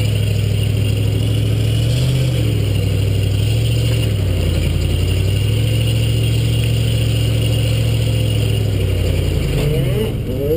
Humming from a car engine as it rolls on